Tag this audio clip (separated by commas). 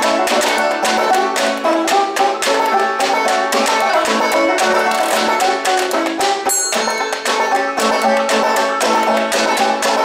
playing washboard